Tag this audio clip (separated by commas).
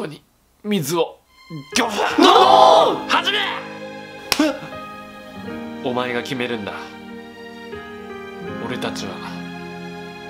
people battle cry